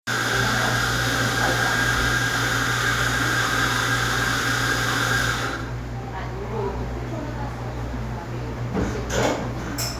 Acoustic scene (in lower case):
cafe